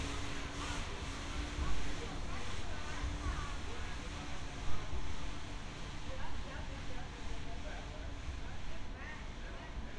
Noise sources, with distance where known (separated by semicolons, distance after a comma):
unidentified human voice, far